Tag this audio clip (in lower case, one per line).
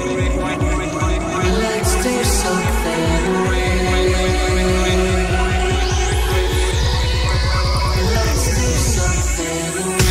music
dubstep